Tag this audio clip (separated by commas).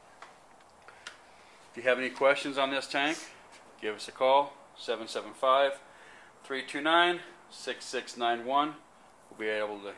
Speech